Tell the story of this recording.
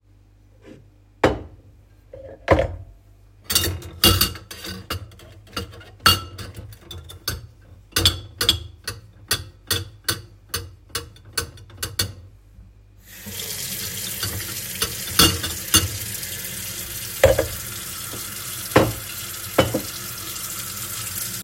I was sorting the dishes and cutlery while I turned the water to run